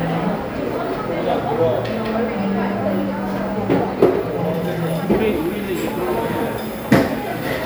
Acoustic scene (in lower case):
cafe